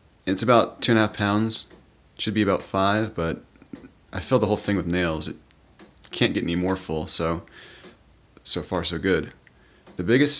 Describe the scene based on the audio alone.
A man speaks with some light distant clicks